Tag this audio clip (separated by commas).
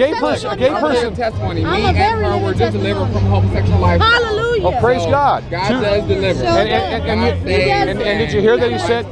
Music, Speech